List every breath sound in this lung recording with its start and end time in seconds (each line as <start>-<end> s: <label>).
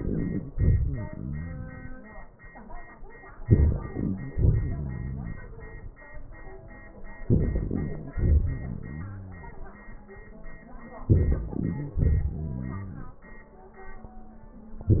0.53-2.06 s: crackles
0.53-2.34 s: exhalation
3.43-4.29 s: crackles
3.43-4.31 s: inhalation
4.29-5.36 s: crackles
4.29-5.93 s: exhalation
7.24-8.13 s: crackles
7.24-8.15 s: inhalation
8.13-9.42 s: crackles
8.13-9.83 s: exhalation
11.04-11.97 s: crackles
11.04-11.99 s: inhalation
11.98-13.07 s: crackles
11.99-13.52 s: exhalation